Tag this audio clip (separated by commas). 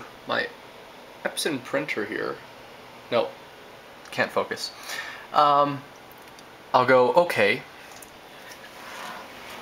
Speech